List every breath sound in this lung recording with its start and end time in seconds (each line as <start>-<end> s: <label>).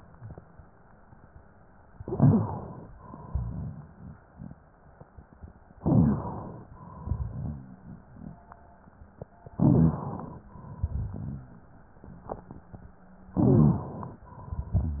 1.93-2.83 s: inhalation
1.97-2.49 s: stridor
2.93-4.16 s: exhalation
5.77-6.71 s: inhalation
5.79-6.31 s: stridor
6.73-8.36 s: exhalation
9.55-10.49 s: inhalation
10.49-12.04 s: exhalation
13.33-14.27 s: inhalation
14.29-15.00 s: exhalation